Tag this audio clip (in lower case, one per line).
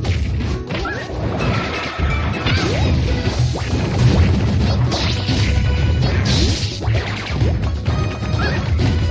music